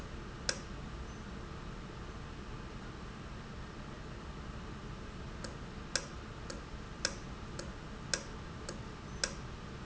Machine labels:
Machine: valve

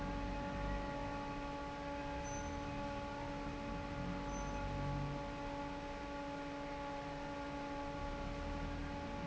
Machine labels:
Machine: fan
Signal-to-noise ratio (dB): 0 dB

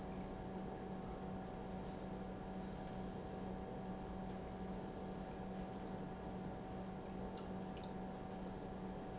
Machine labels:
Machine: pump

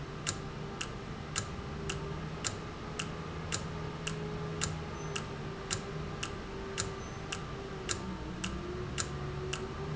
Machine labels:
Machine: valve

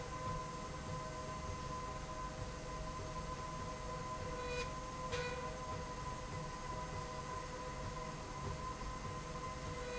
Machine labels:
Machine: slide rail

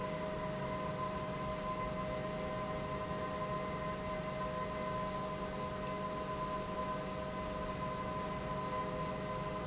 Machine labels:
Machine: pump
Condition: normal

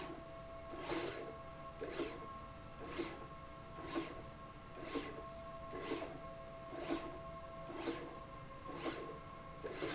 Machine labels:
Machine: slide rail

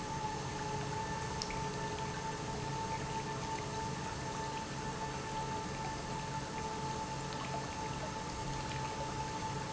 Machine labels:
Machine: pump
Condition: normal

